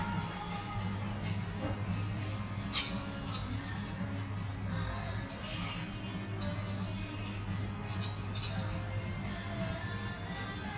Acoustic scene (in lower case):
restaurant